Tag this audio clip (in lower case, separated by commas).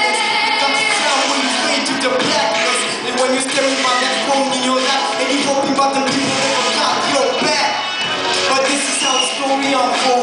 music, male singing, female singing